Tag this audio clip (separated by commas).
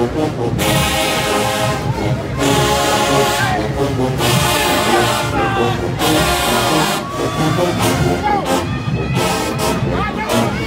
people marching